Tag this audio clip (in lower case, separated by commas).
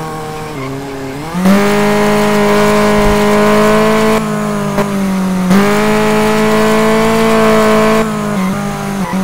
car, vehicle, auto racing